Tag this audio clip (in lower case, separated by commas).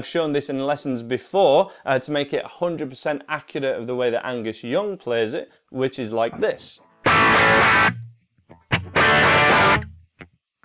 distortion, music, speech, effects unit, electric guitar